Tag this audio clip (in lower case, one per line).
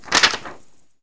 crinkling